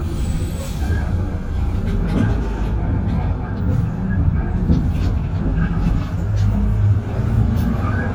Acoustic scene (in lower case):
bus